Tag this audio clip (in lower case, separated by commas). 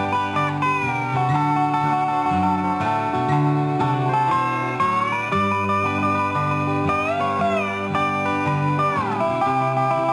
musical instrument, fiddle, music